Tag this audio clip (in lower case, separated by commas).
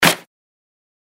hands, clapping